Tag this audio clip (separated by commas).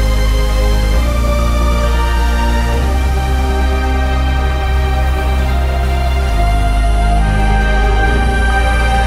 Music